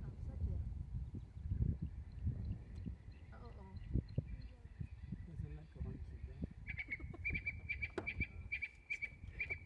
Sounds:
animal, speech, outside, rural or natural

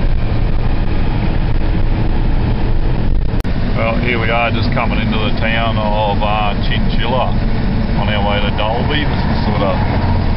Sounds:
vehicle, truck, speech, outside, rural or natural

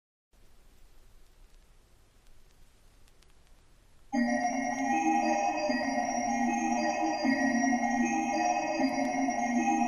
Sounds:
music, electronic music

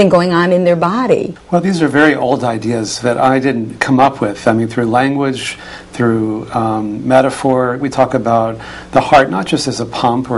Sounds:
speech, conversation

